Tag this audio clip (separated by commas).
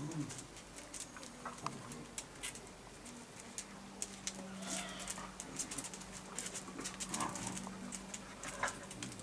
Animal